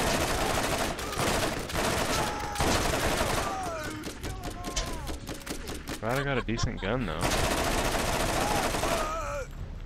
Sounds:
Speech

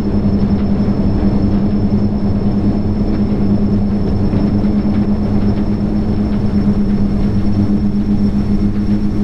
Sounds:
Sound effect

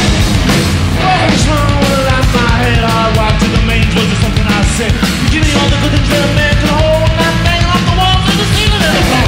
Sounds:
Heavy metal, Singing, Punk rock, Rock music, Music

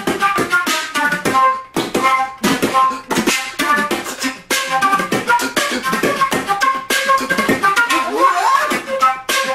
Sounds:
woodwind instrument, Flute

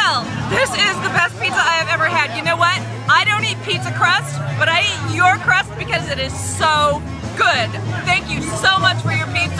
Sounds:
Speech, Music

